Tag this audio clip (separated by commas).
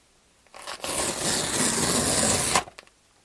Tearing